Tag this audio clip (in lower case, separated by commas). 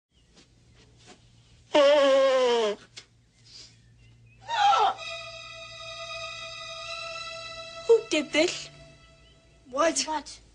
speech, music, inside a small room